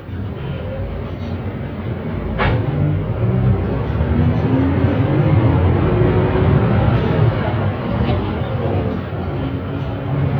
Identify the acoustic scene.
bus